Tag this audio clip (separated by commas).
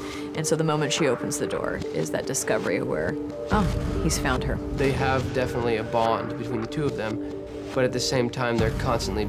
Music, Speech